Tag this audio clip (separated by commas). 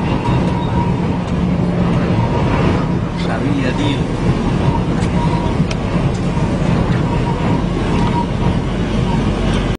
Truck, Speech, Vehicle